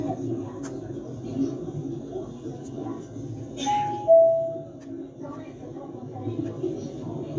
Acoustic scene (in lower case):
subway train